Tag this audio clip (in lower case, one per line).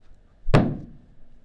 thud